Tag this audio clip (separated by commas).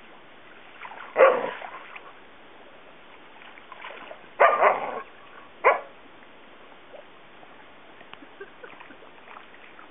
Animal, Bow-wow, Domestic animals, Dog, dog bow-wow